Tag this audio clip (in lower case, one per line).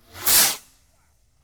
fireworks
explosion